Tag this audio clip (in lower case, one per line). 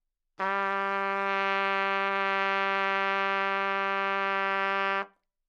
music
brass instrument
musical instrument
trumpet